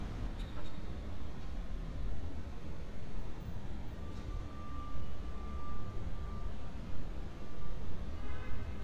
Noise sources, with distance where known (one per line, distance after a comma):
car horn
reverse beeper, far